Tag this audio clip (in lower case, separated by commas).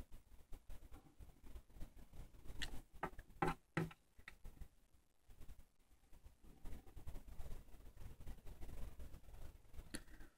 silence